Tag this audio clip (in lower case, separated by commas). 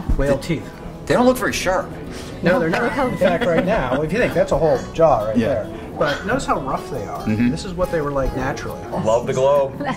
inside a small room, speech, music